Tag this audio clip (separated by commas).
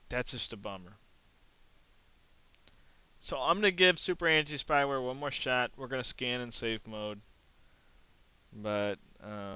Speech